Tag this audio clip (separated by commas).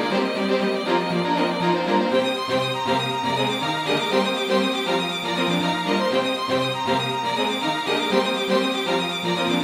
Music